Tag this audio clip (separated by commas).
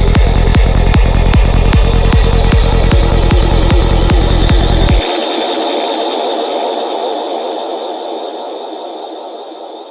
House music, Music, Electronic music